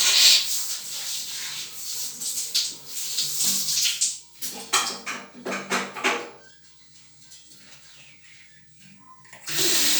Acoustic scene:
restroom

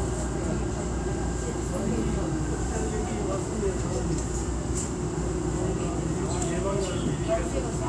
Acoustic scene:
subway train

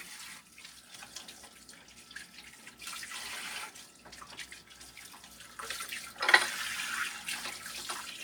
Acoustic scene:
kitchen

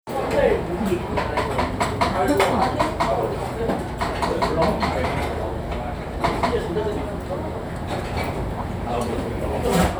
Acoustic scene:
restaurant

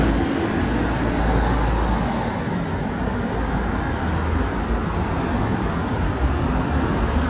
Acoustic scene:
street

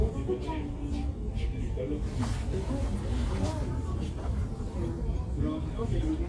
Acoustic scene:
crowded indoor space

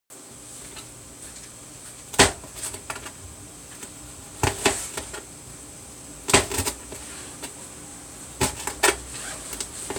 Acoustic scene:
kitchen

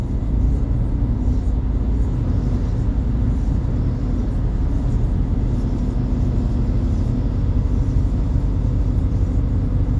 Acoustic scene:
bus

